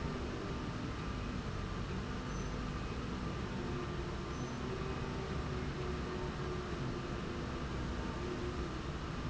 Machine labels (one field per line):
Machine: slide rail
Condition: normal